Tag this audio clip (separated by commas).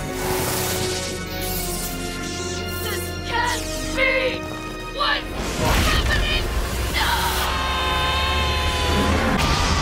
Speech, Music